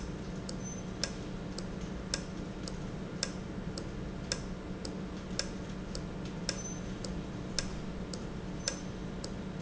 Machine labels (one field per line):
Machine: valve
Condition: normal